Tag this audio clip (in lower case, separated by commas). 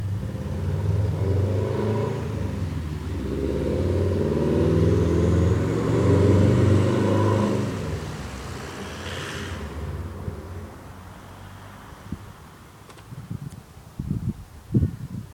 motor vehicle (road), vehicle, car, car passing by